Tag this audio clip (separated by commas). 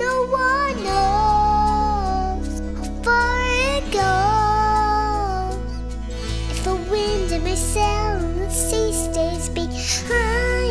child singing